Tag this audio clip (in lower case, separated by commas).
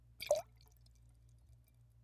liquid